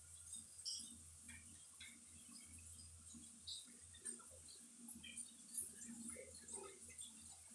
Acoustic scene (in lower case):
restroom